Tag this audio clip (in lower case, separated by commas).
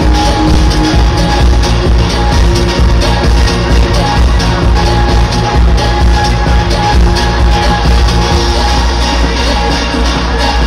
music